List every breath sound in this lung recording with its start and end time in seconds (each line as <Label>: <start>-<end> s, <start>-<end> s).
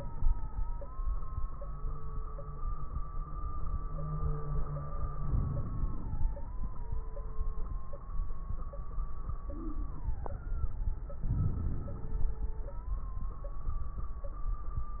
Inhalation: 5.17-6.65 s, 11.28-12.56 s
Crackles: 5.17-6.65 s, 11.28-12.56 s